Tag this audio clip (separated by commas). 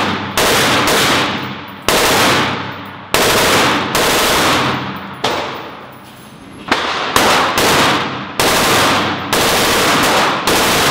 machine gun shooting